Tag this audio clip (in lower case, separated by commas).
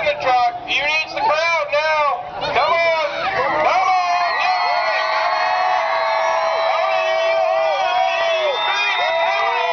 speech